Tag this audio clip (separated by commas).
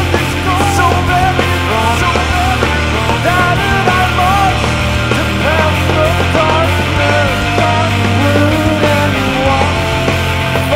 Singing, Punk rock, Music